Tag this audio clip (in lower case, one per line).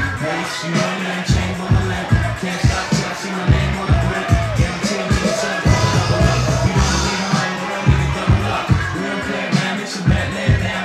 music